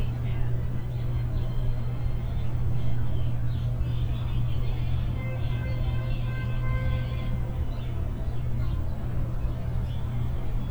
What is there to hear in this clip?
car horn, music from an unclear source